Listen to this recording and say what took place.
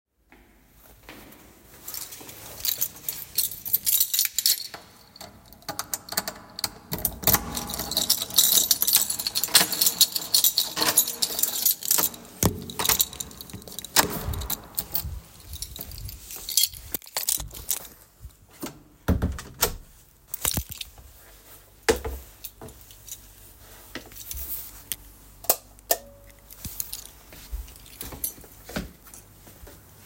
I walk to the front door of the apartment, open it, then go inside, close the door and turn on the light.